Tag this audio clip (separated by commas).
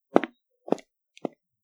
footsteps